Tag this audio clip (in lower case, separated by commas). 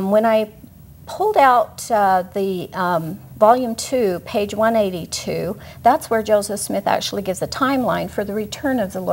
inside a small room, speech